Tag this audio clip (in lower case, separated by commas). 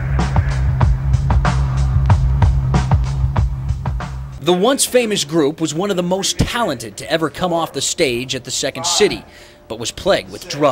music, speech